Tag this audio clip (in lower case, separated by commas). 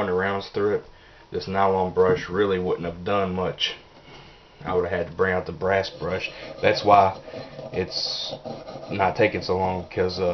speech